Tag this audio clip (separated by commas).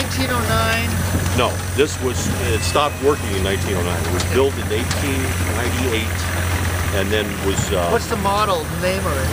Speech